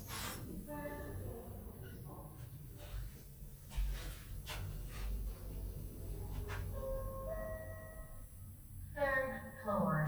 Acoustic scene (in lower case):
elevator